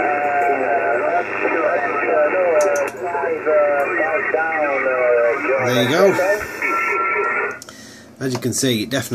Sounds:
radio
speech

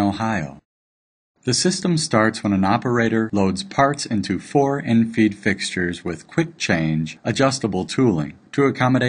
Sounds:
speech

